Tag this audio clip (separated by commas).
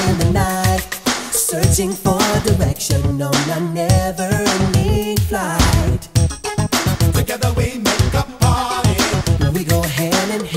Funk, Music